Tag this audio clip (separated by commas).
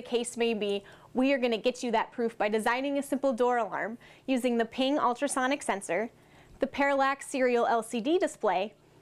Speech